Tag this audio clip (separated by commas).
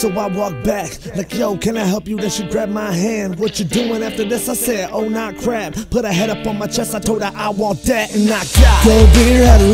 Music